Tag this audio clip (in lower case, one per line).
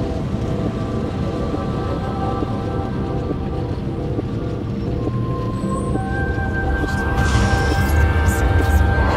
music